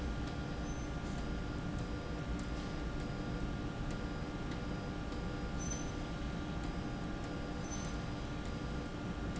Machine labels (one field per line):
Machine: slide rail